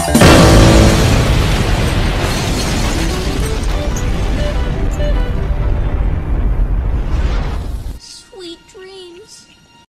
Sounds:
pop
explosion
speech
music

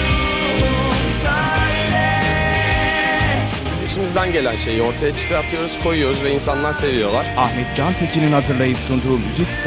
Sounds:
speech
music
rhythm and blues

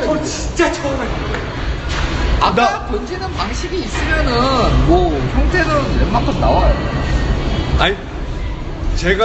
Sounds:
bowling impact

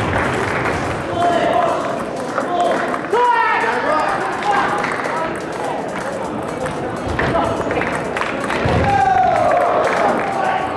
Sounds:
playing table tennis

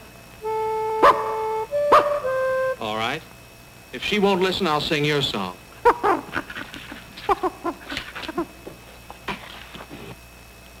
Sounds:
speech
dog
bow-wow
pets
animal
music

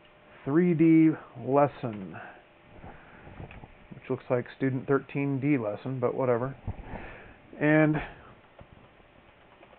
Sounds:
speech

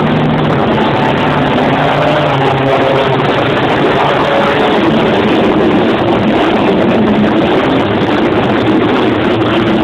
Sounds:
outside, urban or man-made

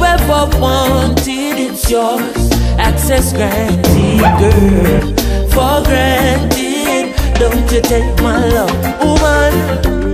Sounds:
music of africa

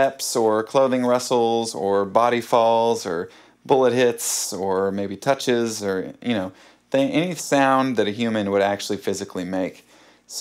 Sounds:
speech

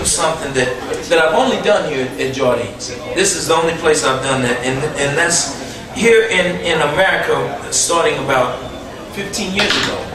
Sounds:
speech

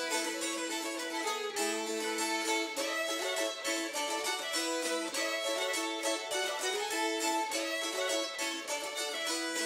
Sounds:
music
violin
musical instrument

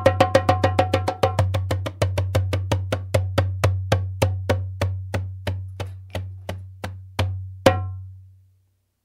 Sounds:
percussion
music

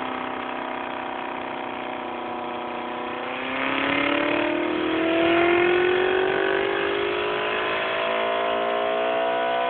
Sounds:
engine

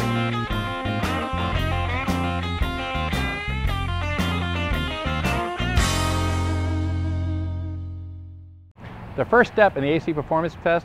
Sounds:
speech
music

